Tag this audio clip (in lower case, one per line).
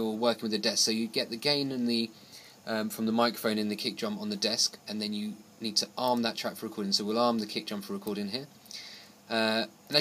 speech